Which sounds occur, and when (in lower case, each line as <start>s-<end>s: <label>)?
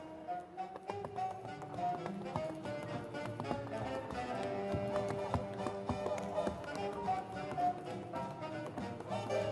0.0s-9.5s: music
0.0s-9.5s: tap dance
0.7s-1.4s: cheering